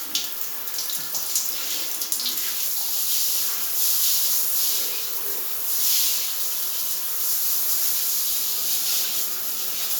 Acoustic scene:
restroom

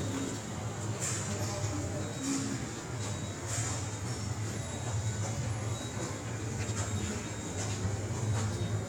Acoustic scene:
subway station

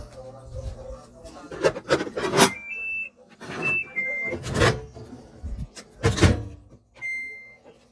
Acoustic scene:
kitchen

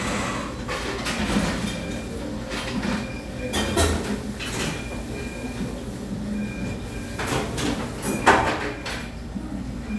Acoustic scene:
cafe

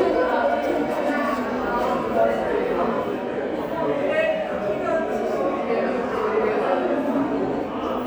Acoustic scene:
subway station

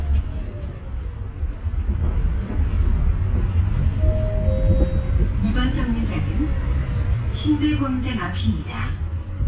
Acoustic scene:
bus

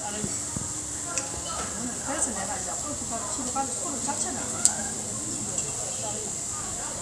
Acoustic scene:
restaurant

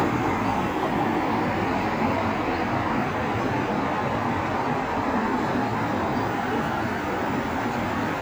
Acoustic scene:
street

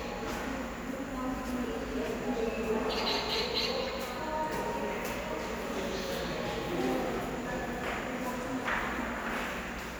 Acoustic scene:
subway station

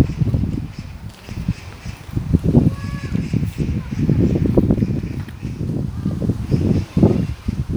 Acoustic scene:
park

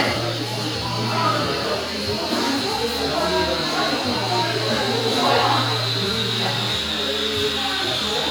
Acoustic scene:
cafe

